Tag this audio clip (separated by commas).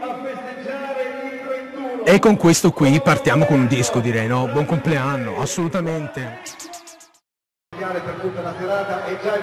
Radio, Speech